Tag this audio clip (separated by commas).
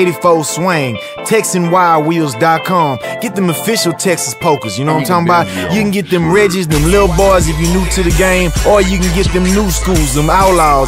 Music